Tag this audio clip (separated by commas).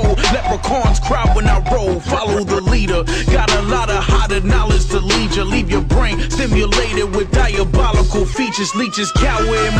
Music